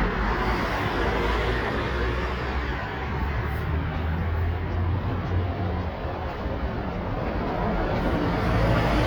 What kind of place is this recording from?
street